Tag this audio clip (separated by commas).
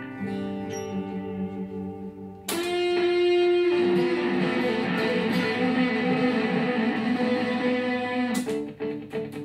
Strum, Musical instrument, Plucked string instrument, Music, Electric guitar, Guitar